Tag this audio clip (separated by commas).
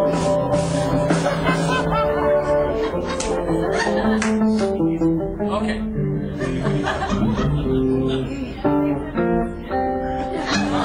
Strum, Music, Electric guitar, Musical instrument, Guitar, Speech, Plucked string instrument